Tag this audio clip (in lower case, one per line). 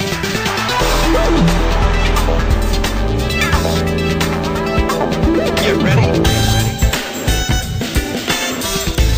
music